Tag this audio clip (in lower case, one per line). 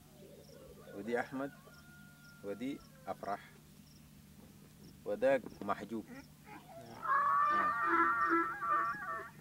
honk